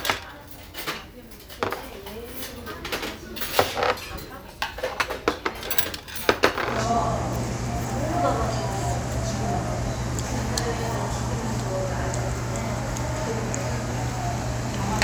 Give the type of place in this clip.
restaurant